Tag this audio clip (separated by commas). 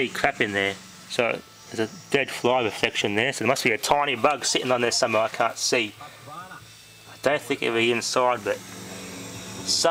Speech